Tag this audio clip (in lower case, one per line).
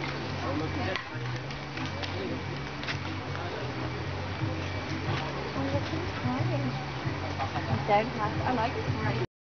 speech
music